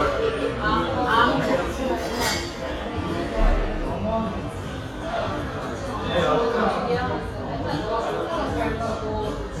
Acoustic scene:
cafe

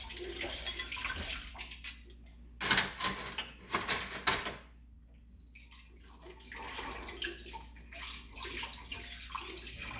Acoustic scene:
kitchen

